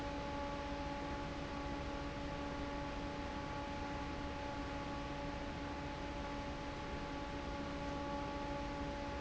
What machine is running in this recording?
fan